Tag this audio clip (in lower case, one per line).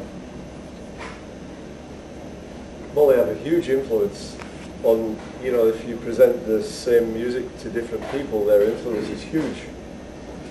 speech